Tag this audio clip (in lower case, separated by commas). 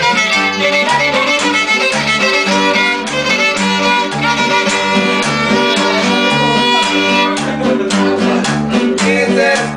musical instrument, fiddle, music